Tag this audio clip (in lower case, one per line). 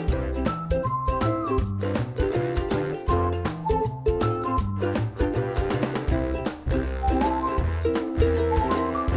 music